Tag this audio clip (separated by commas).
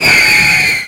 Fireworks, Explosion